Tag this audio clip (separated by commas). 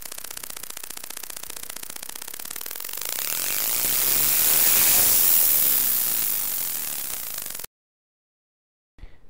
Speech, Whir